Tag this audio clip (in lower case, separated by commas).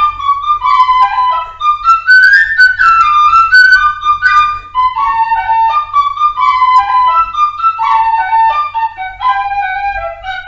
music, flute